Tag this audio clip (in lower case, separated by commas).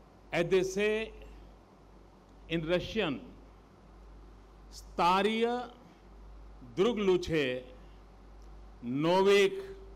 male speech, monologue, speech